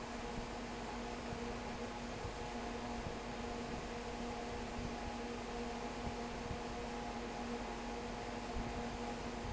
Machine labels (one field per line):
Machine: fan